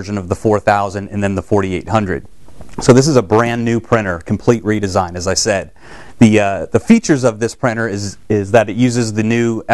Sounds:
Speech

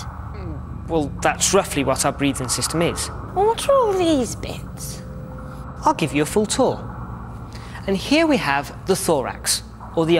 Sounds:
Speech

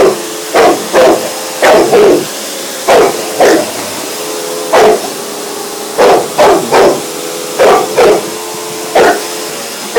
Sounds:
pets, Dog, Animal

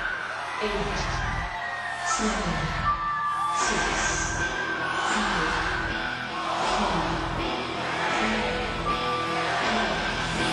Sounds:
Music, Speech, Musical instrument

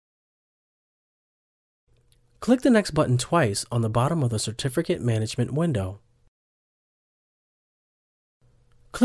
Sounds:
Speech

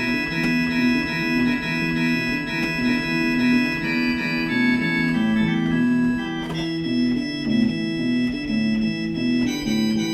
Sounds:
Piano, Electric piano, Keyboard (musical), Music, Organ, Musical instrument

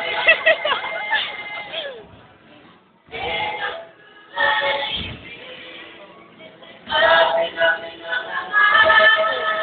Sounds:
Singing, Music, inside a large room or hall

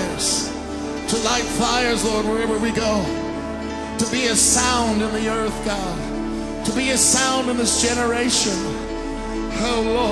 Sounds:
Music

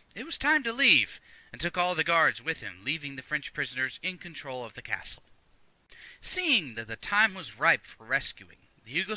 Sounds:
Speech, monologue

